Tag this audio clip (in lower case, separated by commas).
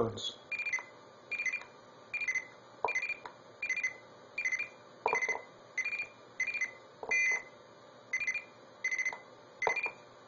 beep, speech